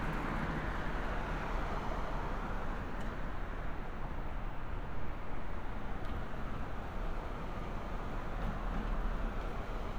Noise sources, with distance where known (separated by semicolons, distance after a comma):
medium-sounding engine, near